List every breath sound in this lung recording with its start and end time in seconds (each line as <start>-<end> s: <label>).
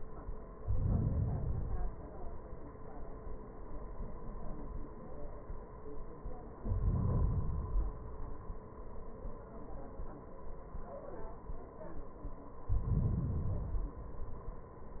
0.44-1.41 s: inhalation
1.45-2.62 s: exhalation
6.57-7.59 s: inhalation
7.57-8.59 s: exhalation
12.72-13.79 s: inhalation
13.78-14.85 s: exhalation